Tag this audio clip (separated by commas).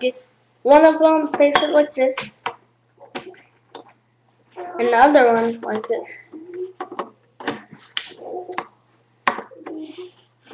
Speech